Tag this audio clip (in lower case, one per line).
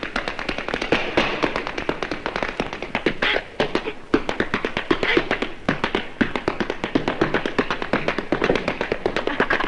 inside a large room or hall